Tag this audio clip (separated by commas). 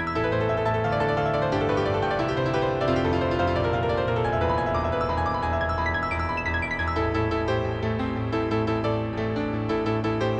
Music